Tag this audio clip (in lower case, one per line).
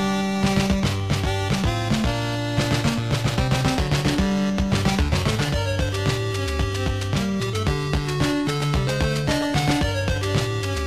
music